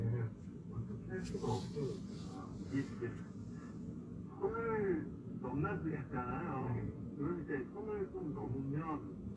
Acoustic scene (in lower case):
car